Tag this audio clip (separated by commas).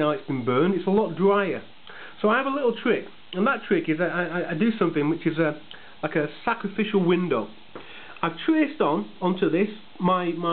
Speech, inside a small room